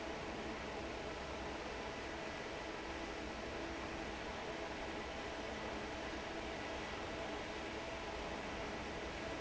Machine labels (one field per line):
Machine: fan